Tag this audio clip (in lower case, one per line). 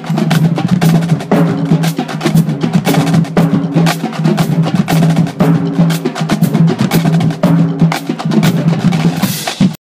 percussion
music